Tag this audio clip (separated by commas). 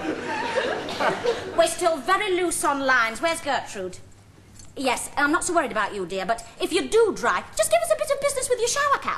Speech